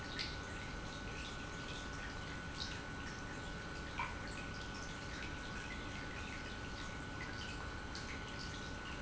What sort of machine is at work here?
pump